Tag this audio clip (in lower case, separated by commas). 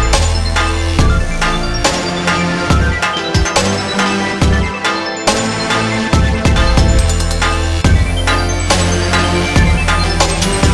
music, electronic music, dubstep